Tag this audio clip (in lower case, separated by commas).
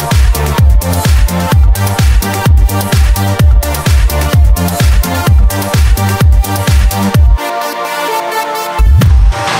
dance music, music